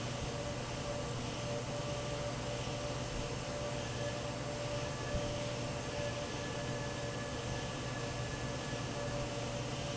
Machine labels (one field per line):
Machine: fan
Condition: normal